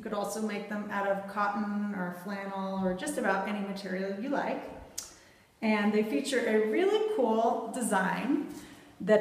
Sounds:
speech

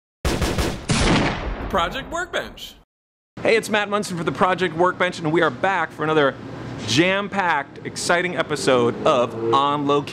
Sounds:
gunfire

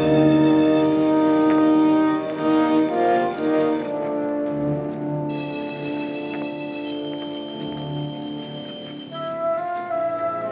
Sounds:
music

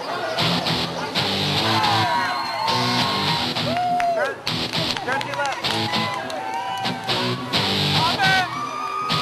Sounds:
music
speech

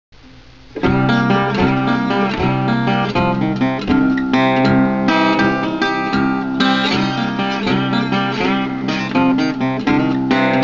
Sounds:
music
strum
guitar
plucked string instrument
musical instrument

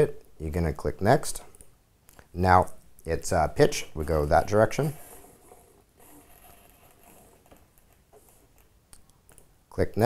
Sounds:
speech

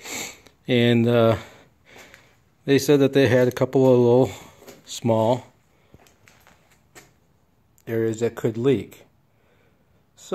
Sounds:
speech

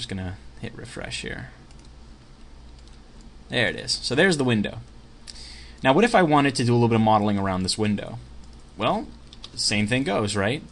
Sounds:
speech

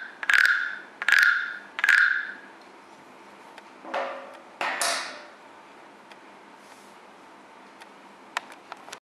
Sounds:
scrape

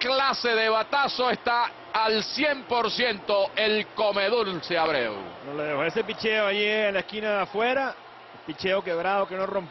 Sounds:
speech

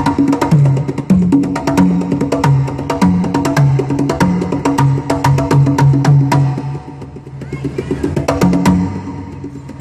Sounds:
playing congas

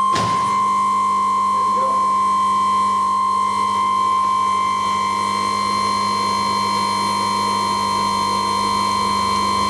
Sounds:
sine wave

